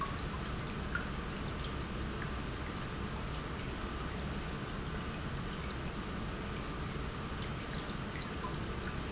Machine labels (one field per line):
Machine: pump